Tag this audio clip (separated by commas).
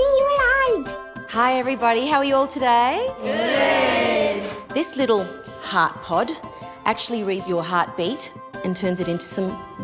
Speech, Music